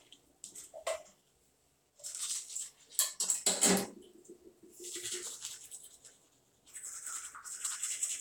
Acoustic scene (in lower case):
restroom